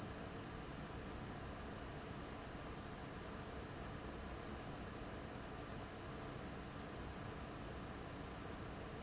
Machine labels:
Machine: fan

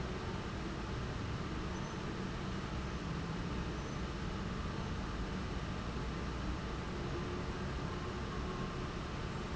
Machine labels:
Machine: fan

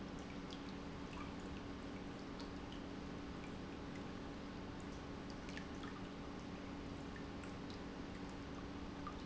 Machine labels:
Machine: pump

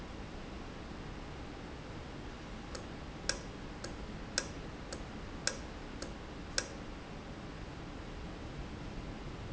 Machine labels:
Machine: valve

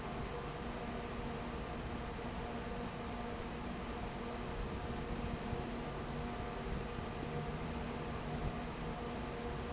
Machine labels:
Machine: fan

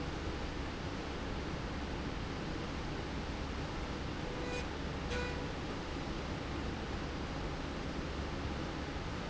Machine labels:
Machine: slide rail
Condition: normal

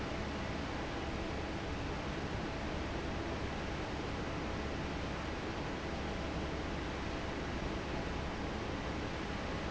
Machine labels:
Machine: fan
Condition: normal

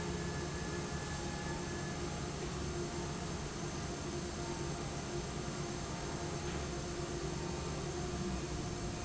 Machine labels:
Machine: fan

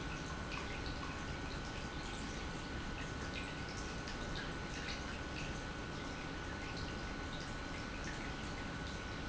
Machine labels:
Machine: pump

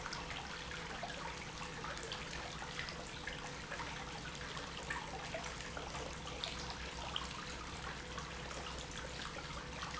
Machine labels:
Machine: pump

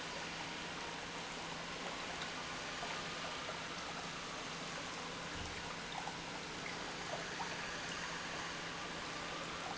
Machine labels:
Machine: pump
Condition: normal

